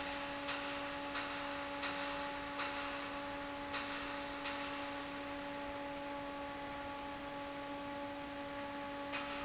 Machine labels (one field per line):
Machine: fan